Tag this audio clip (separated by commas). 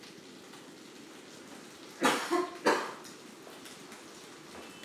Cough, Respiratory sounds